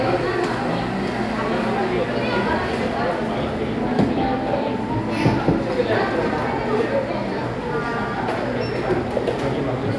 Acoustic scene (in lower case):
cafe